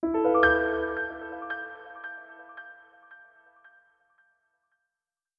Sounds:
music, musical instrument, keyboard (musical), piano

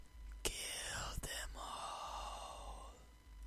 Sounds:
human voice

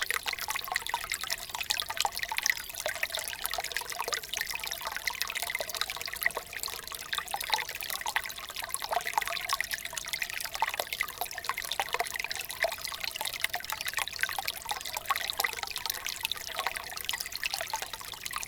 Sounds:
water, stream

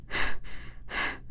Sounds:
respiratory sounds, breathing

